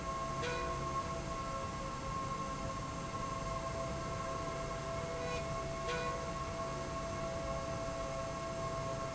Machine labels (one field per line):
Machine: slide rail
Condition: normal